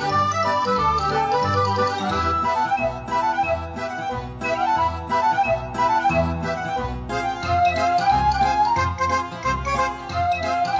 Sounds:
Music

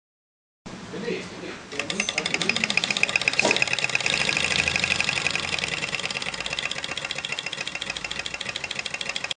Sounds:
Speech, Medium engine (mid frequency), Idling, Engine, revving

